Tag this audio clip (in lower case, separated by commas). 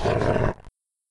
dog, growling, animal, domestic animals